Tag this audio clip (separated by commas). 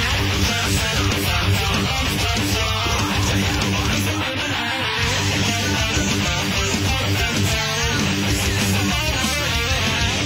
Plucked string instrument, Strum, Music, Guitar, Musical instrument